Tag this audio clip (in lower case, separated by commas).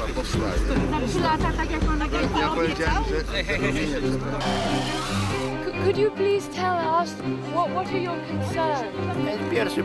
speech, music